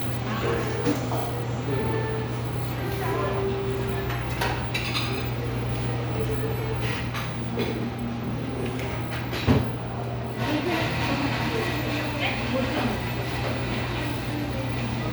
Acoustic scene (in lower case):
cafe